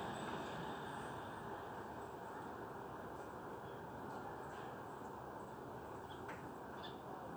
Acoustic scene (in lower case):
residential area